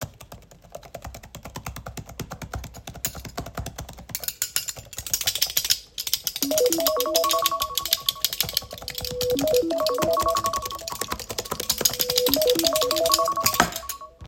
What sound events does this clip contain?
keyboard typing, keys, phone ringing